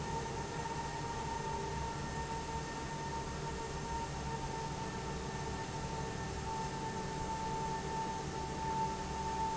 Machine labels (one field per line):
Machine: fan